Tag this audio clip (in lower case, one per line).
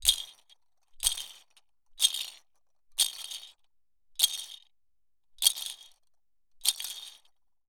rattle